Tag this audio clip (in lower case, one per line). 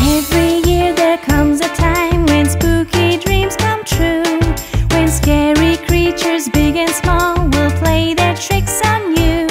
child singing